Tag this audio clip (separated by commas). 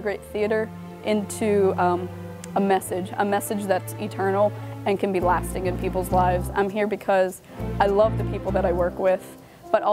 Speech, Music